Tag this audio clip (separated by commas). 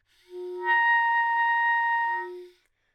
Musical instrument, woodwind instrument, Music